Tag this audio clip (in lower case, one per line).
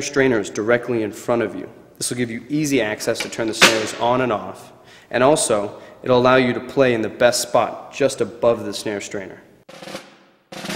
speech
music